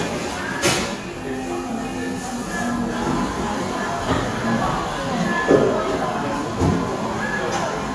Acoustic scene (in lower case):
cafe